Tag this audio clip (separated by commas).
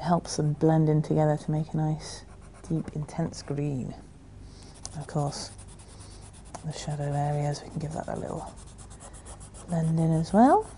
Speech, inside a small room